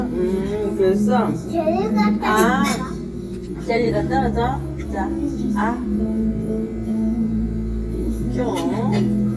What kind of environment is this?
restaurant